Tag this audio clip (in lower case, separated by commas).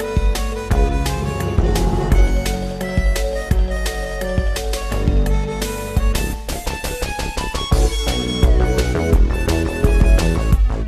soundtrack music, music